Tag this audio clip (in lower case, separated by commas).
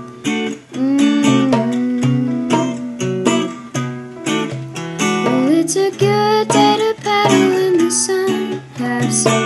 music